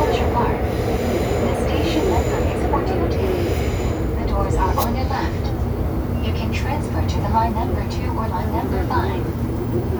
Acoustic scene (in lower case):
subway train